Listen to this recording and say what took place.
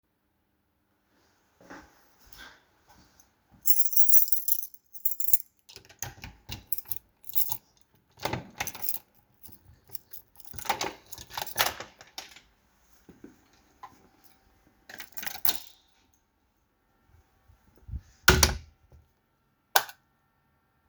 I walk down the hallway toward the entrance door of the house. I take out the key and open the door. Then I close the door and turn on the light.